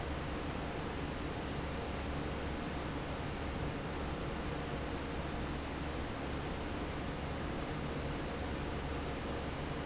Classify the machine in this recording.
fan